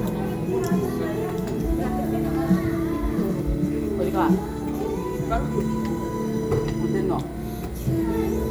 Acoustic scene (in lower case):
crowded indoor space